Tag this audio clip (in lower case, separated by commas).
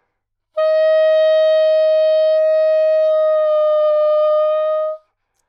musical instrument, woodwind instrument, music